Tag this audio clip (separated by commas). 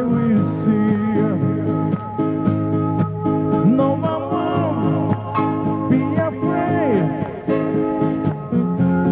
Music, Male singing